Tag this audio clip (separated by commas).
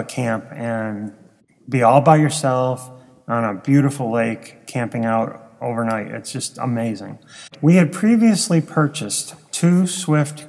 Speech